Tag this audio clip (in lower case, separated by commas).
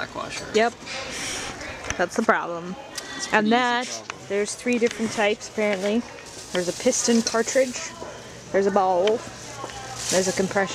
speech